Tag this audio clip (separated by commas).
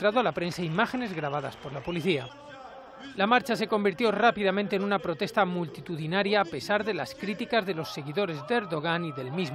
people booing